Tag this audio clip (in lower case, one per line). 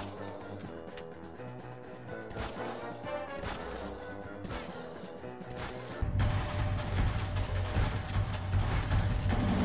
music
background music